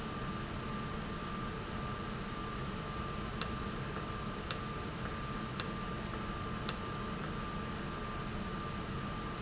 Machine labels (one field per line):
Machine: valve